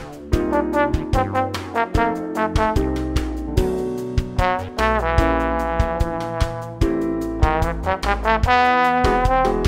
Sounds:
playing trombone

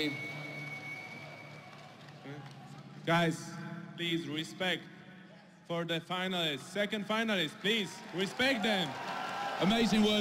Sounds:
speech

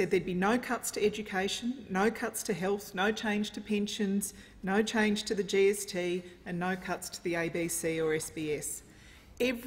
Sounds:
woman speaking, narration, speech

